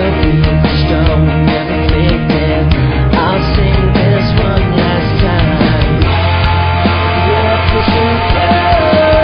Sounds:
music, pop music

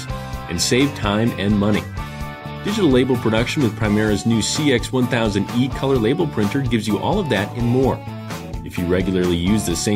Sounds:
music, speech

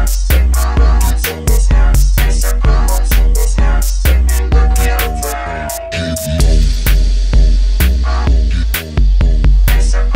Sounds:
music, inside a large room or hall

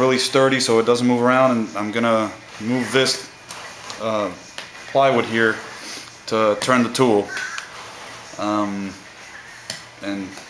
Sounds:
inside a small room, speech

